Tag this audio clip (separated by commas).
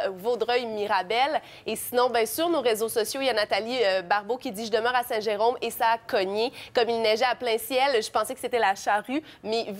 Speech